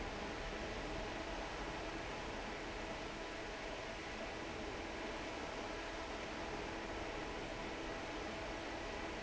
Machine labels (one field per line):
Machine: fan